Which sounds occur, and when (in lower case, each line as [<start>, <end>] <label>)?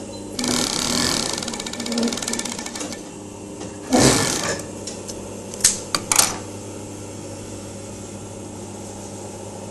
[0.00, 9.70] mechanisms
[0.27, 2.88] sewing machine
[3.76, 4.57] sewing machine
[4.77, 5.10] scissors
[5.54, 5.76] scissors
[5.88, 6.44] generic impact sounds